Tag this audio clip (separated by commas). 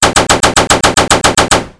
Gunshot, Explosion